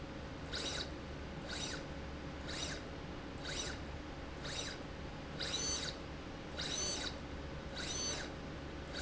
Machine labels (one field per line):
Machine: slide rail